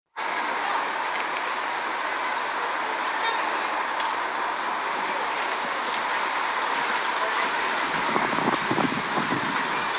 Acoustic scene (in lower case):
park